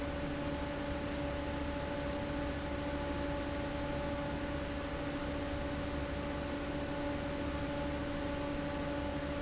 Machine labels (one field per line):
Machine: fan